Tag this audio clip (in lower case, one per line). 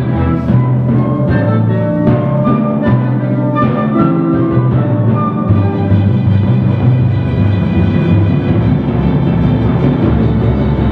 playing timpani